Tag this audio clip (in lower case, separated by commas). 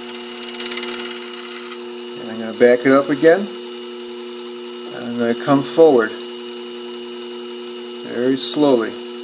speech, tools